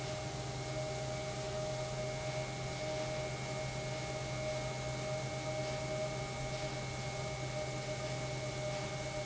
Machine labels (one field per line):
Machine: pump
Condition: normal